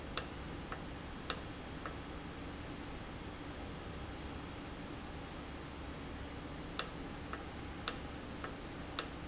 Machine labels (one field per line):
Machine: valve